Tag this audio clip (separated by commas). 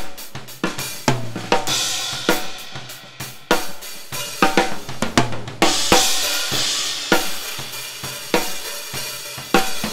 playing cymbal, Hi-hat, Cymbal